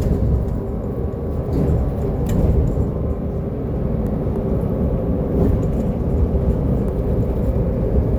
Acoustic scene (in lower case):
bus